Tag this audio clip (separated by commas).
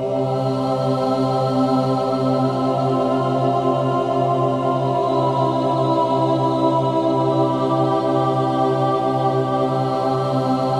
Music